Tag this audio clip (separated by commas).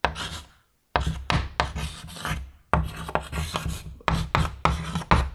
Writing, Domestic sounds